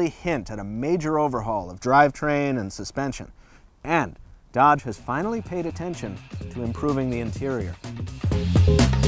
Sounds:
music, speech

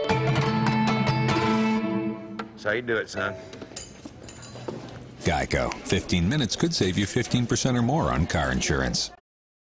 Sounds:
music, speech, fiddle, musical instrument

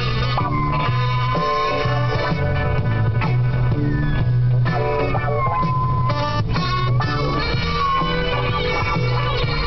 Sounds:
yip, music

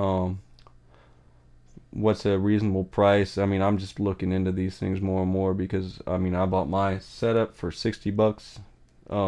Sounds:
speech

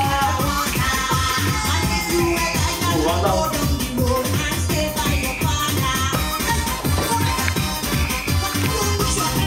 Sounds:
music, speech

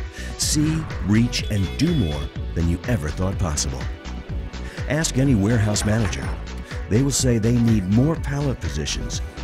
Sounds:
music, speech

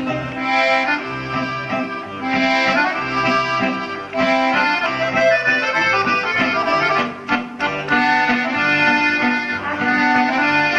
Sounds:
musical instrument, accordion, music

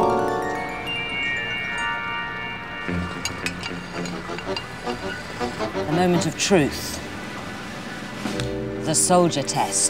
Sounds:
music, speech

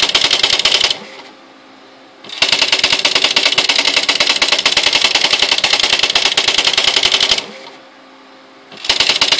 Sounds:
typewriter

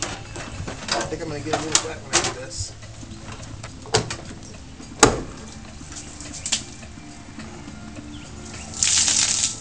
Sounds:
speech, music

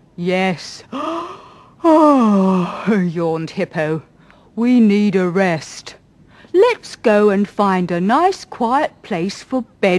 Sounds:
speech

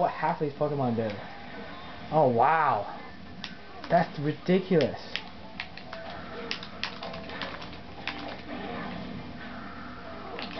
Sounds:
speech

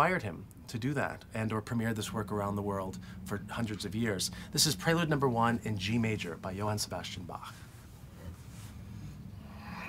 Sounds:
speech, music

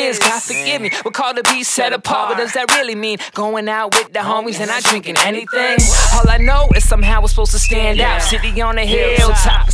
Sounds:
happy music, music, independent music

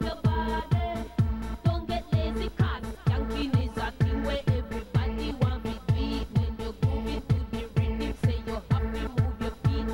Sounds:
music

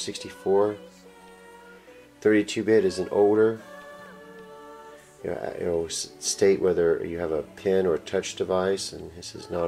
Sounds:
music, speech

